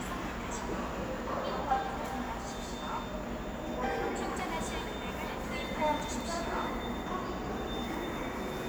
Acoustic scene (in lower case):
subway station